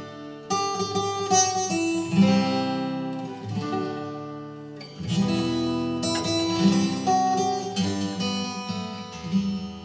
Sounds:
Music, Guitar, Musical instrument, Acoustic guitar, Plucked string instrument

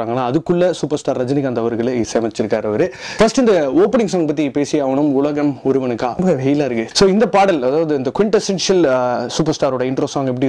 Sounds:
Speech

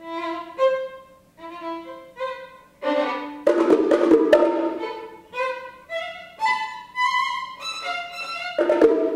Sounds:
Musical instrument, Violin, Music

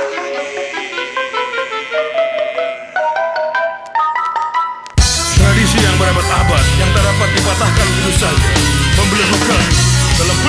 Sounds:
Music

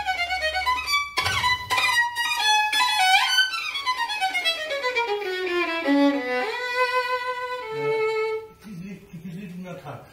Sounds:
Musical instrument, Music, fiddle, Speech

